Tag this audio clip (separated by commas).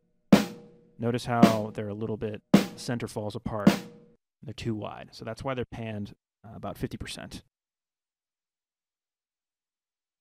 Musical instrument, Speech, Drum, Music